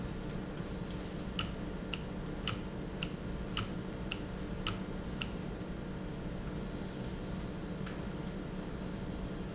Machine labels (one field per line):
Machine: valve